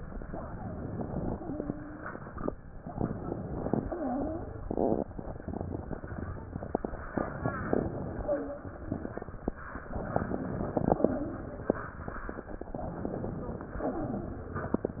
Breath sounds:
Inhalation: 0.25-1.39 s, 2.92-3.91 s, 7.17-8.45 s, 9.92-11.20 s, 12.77-13.81 s
Exhalation: 13.81-14.82 s
Wheeze: 1.31-2.13 s, 3.79-4.44 s, 8.27-8.65 s

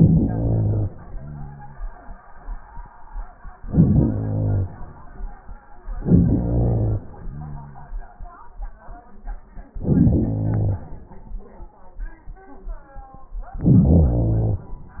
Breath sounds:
Inhalation: 0.00-0.88 s, 3.62-4.72 s, 5.99-7.09 s, 9.75-10.83 s, 13.59-14.67 s
Exhalation: 0.90-2.00 s, 7.08-8.46 s

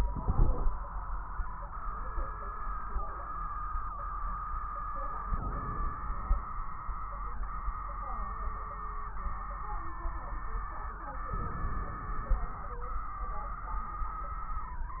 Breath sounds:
Inhalation: 0.00-0.67 s, 5.24-6.03 s, 11.37-13.01 s
Exhalation: 6.05-6.84 s
Crackles: 0.00-0.67 s, 5.24-6.85 s

